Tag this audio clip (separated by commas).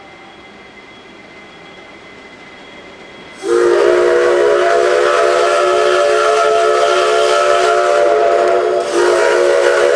Steam whistle, Steam